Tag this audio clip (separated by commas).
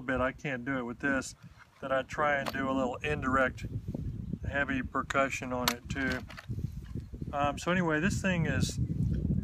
Speech